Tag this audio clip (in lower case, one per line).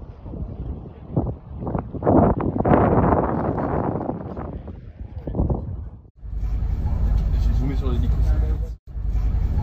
volcano explosion